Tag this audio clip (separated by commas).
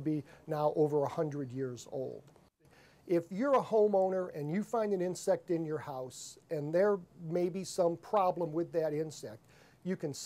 Speech